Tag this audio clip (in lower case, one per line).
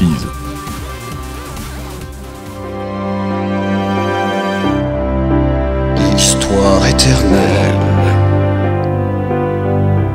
speech
music